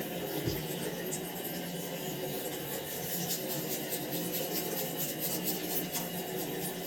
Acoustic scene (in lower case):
restroom